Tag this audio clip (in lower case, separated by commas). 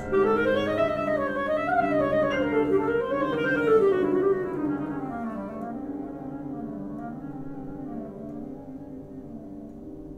playing clarinet